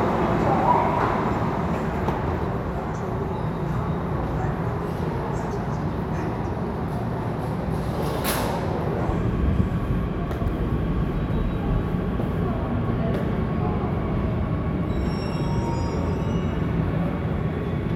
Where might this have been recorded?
in a subway station